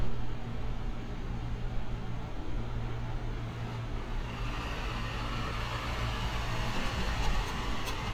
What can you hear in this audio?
large-sounding engine